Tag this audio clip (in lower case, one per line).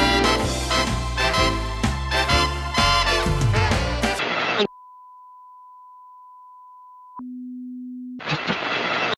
sine wave